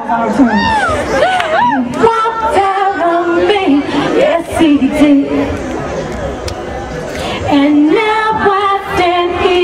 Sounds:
Speech

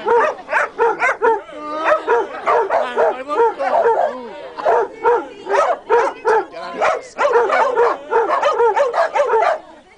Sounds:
Animal, Yip, Speech, pets, Bow-wow, Dog

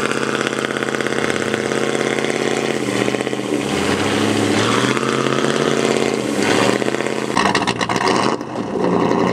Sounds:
outside, rural or natural, Truck, Vehicle

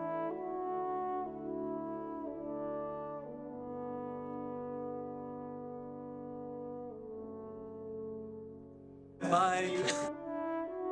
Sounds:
French horn, Brass instrument

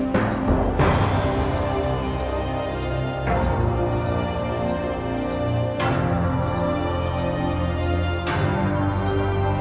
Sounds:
Music

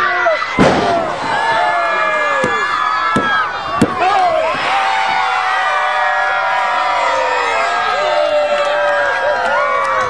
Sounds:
Speech

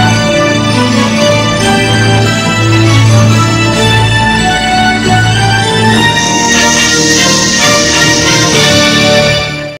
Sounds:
Music, Theme music

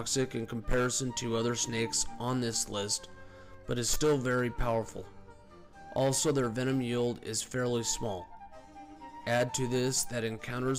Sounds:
Speech, Music

